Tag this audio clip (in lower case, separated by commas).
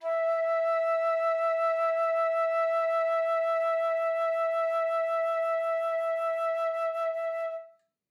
musical instrument, wind instrument, music